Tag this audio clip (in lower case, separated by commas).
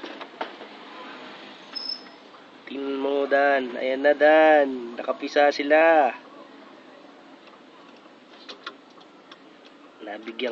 coo, speech